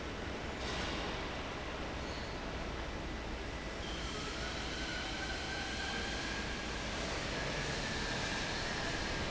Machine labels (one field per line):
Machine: fan